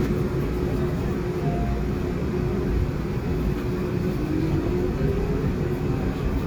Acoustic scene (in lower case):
subway train